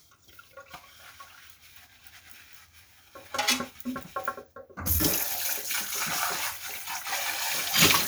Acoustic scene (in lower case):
kitchen